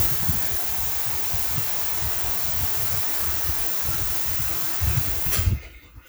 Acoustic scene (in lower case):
restroom